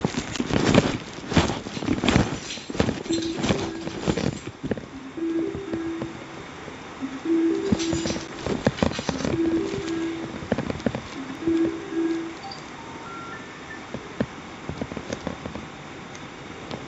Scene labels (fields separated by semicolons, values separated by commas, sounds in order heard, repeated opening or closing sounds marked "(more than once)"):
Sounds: footsteps, keys, phone ringing